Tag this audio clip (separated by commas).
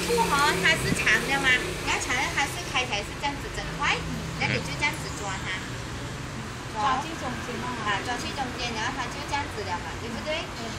Car, Speech, Vehicle